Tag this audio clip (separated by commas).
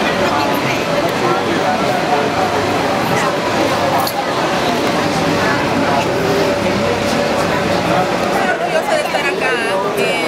Speech